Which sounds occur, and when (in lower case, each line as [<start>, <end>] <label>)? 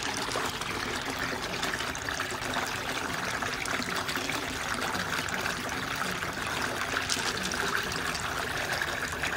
[0.00, 9.35] fill (with liquid)